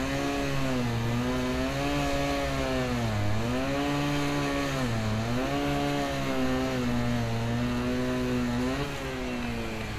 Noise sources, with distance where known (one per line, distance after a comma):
chainsaw